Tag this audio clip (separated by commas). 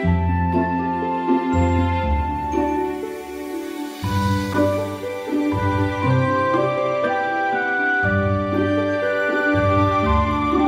Music